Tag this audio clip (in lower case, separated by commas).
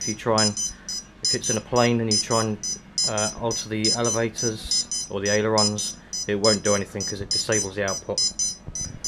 smoke detector